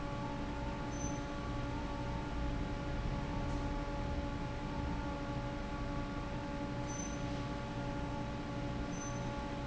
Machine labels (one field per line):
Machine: fan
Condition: normal